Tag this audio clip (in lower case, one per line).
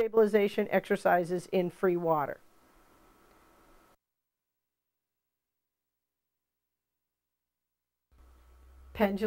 speech